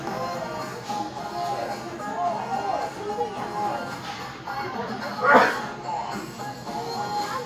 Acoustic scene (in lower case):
crowded indoor space